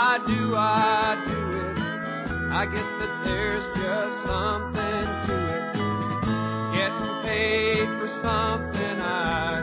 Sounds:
Music

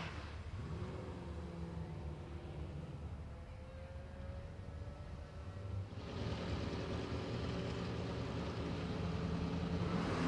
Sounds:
Vehicle, Car, Car passing by, Motor vehicle (road)

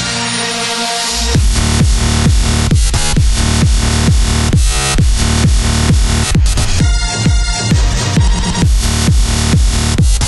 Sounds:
Music, Disco

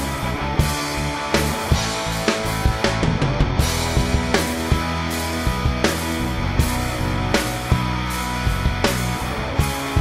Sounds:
Music

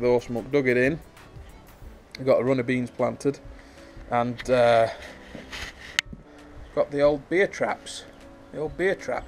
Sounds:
Speech, Music

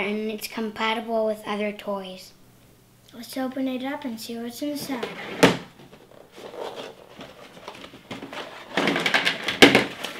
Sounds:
Speech

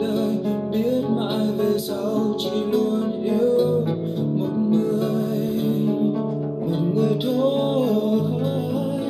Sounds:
Musical instrument, Plucked string instrument, playing acoustic guitar, Music, Strum, Guitar, Acoustic guitar

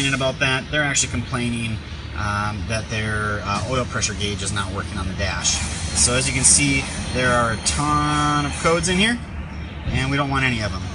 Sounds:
Music, Speech

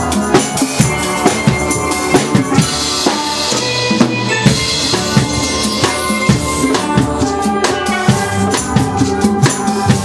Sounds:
Drum, Steelpan, Music

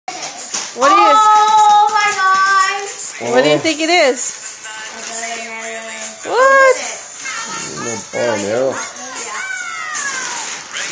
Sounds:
kid speaking, Music, Speech

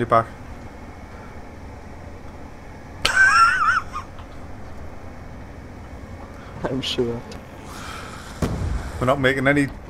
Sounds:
Speech, inside a large room or hall

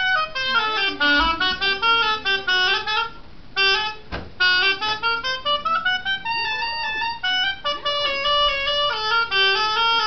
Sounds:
playing oboe

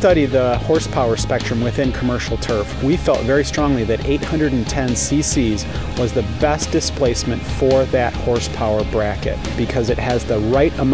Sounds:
Music, Speech

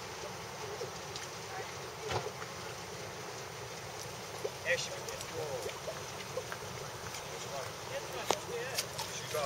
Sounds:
Speech, outside, urban or man-made

